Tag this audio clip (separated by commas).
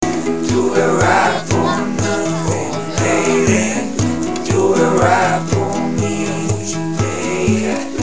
Guitar, Plucked string instrument, Human voice, Acoustic guitar, Musical instrument, Music